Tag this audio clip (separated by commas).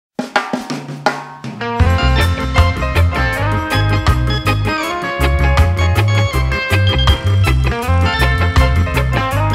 Music, Drum roll